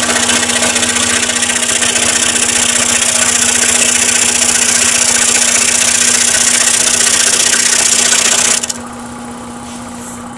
A sewing machine operating continuously